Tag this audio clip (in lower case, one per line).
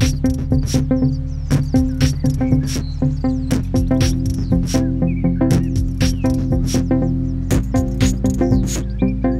bird
animal
music